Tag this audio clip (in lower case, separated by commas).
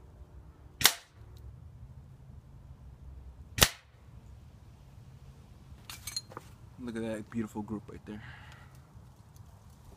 gunshot, cap gun